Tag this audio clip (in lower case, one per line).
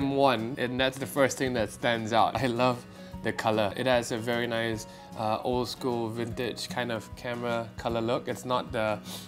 speech
music